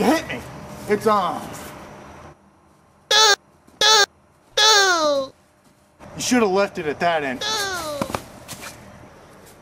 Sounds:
Speech

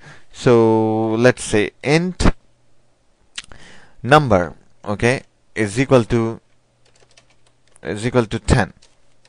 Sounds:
Computer keyboard

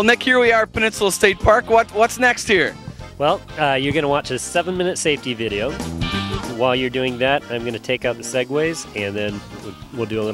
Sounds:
Speech, Music

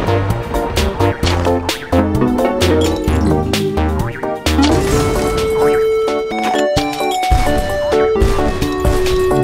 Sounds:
crash, Music

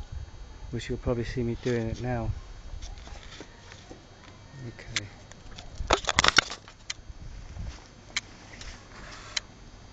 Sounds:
Speech

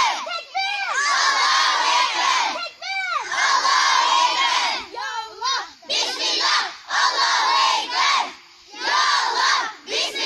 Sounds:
children shouting

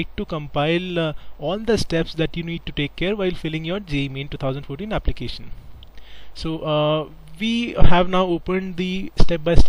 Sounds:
Speech

